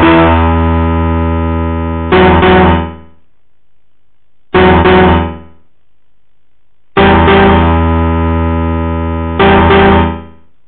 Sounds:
music

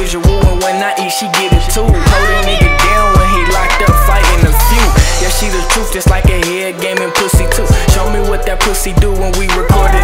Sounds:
music

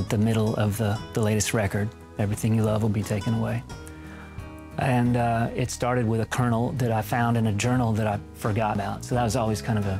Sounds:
speech, music, sad music

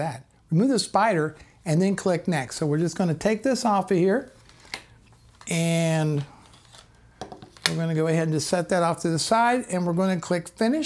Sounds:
speech

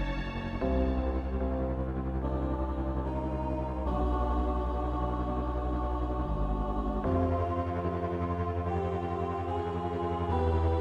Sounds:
reverberation, music

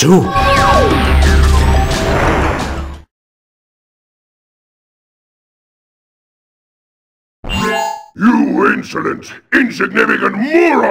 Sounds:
speech, music

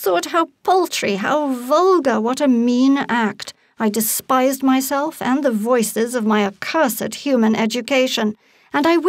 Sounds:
speech

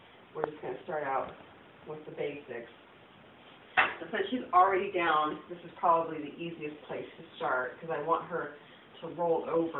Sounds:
speech

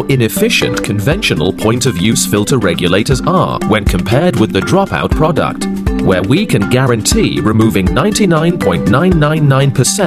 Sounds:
speech, music

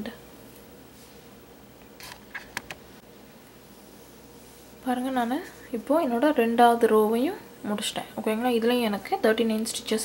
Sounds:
inside a small room, speech

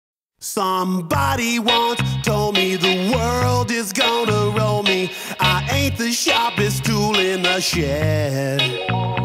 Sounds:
music, reggae

